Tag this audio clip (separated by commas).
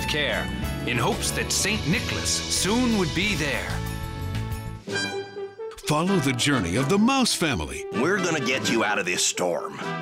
Speech, Music